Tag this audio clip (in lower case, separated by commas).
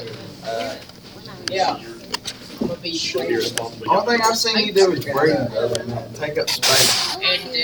female speech, chatter, human group actions, man speaking, human voice, conversation, speech